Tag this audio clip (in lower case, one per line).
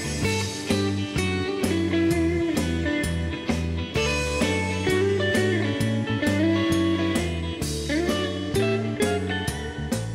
blues